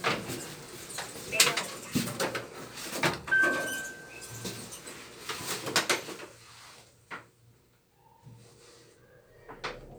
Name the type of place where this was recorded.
elevator